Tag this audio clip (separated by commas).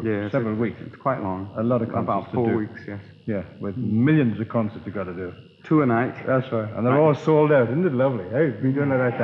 Speech